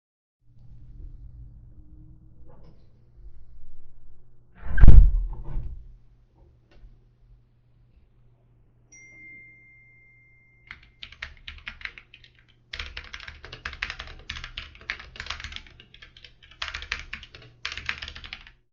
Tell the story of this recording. I go to window, close it, sit on chair, achive phone notification and start typing on keyboard